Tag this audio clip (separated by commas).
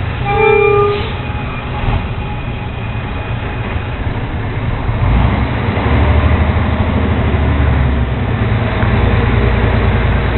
Vehicle, Truck